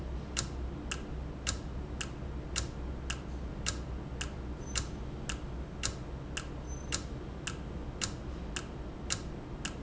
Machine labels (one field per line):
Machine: valve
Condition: normal